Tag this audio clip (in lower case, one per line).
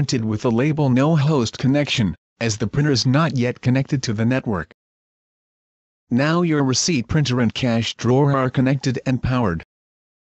speech